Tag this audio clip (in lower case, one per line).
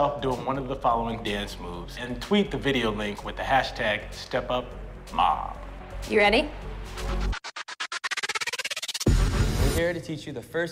speech
music